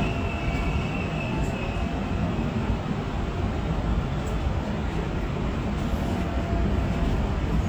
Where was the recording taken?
on a subway train